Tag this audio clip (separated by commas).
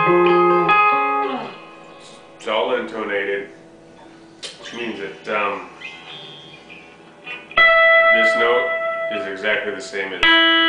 Musical instrument, Guitar, Electric guitar, Plucked string instrument, Speech, Music